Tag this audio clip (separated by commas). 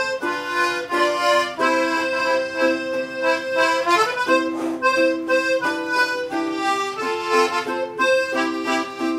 Accordion, Musical instrument, Plucked string instrument, Ukulele, Music, playing accordion